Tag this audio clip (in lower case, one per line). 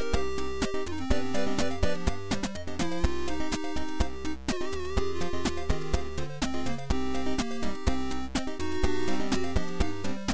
music